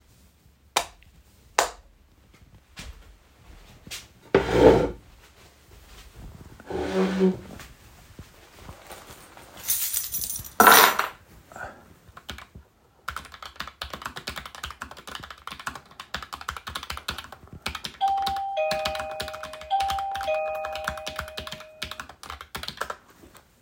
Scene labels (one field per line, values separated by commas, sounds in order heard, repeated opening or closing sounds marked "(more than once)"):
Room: office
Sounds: light switch, footsteps, keys, keyboard typing, bell ringing